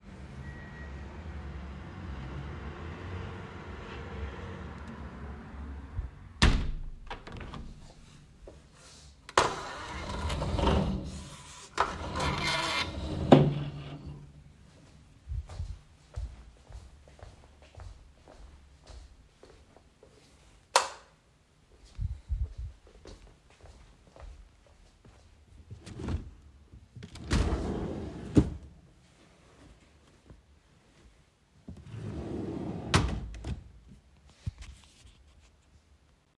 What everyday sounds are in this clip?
window, footsteps, light switch, wardrobe or drawer